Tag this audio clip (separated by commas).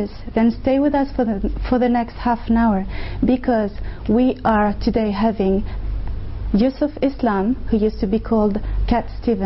Speech